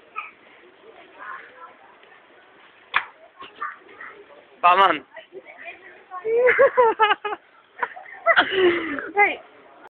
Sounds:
Speech

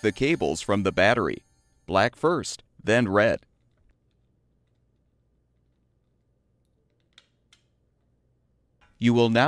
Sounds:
Speech

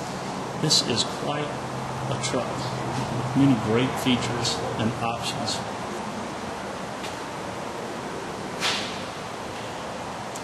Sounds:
Truck

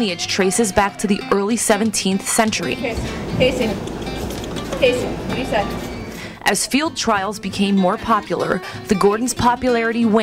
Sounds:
Music, Speech

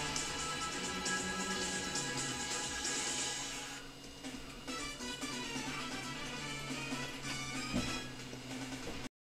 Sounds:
Music

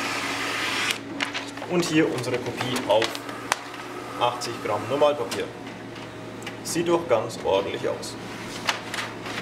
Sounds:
Printer, Speech

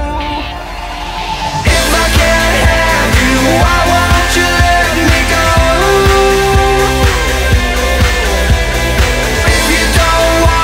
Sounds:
Music

